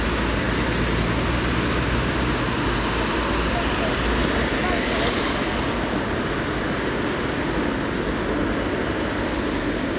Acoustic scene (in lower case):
street